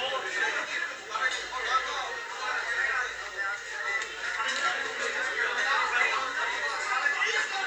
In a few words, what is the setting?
crowded indoor space